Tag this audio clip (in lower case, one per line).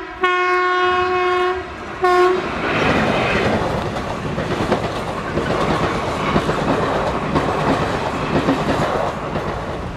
train horning